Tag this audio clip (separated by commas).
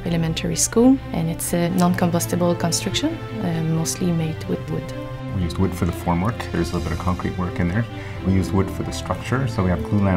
Music, Speech